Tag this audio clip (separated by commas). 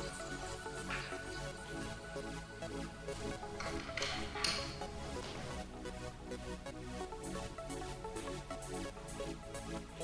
Music